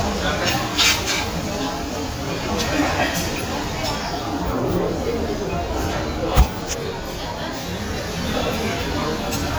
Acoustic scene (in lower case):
crowded indoor space